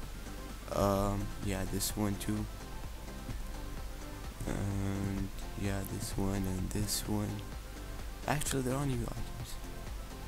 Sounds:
Music, Speech

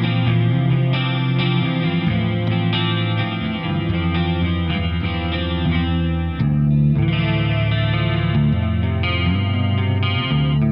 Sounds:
Music, Plucked string instrument, Acoustic guitar, Electric guitar, Musical instrument, Steel guitar

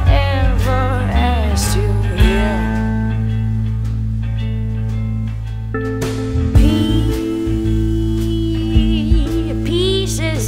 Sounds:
Music, Blues

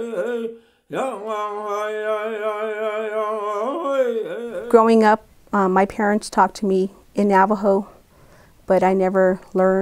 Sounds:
Speech, Humming, inside a small room

